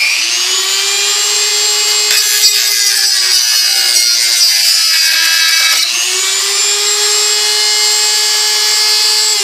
A power tool operating then sawing